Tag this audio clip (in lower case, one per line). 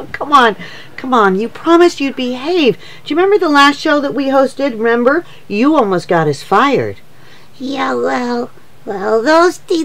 speech